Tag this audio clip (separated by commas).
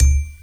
xylophone, Musical instrument, Bell, Percussion, Mallet percussion, Music